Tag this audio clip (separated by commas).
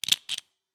Tools